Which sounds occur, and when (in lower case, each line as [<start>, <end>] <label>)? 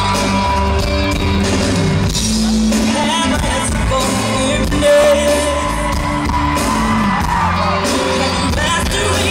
[0.00, 0.83] whoop
[0.00, 9.30] crowd
[0.00, 9.30] music
[0.93, 1.12] human voice
[2.38, 2.53] human voice
[2.85, 5.52] female singing
[4.79, 7.75] whoop
[7.54, 9.30] female singing